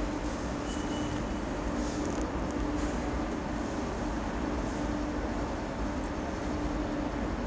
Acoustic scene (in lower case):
subway station